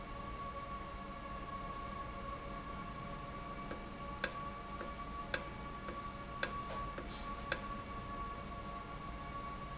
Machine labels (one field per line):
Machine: valve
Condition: normal